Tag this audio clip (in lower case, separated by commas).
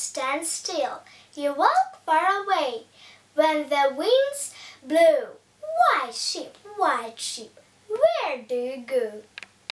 speech